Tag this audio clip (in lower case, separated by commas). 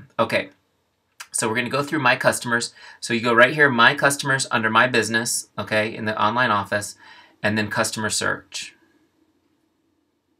speech